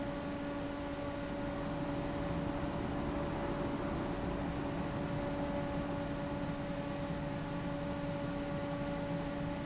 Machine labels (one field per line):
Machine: fan